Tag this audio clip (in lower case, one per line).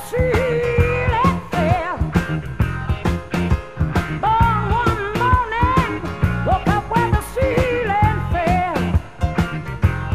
music